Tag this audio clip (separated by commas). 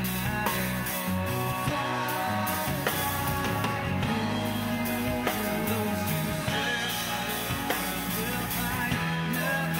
Music, Psychedelic rock